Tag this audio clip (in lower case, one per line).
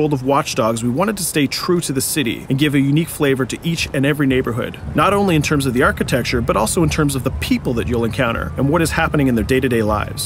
speech